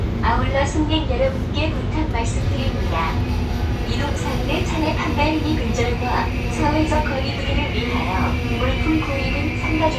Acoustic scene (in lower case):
subway train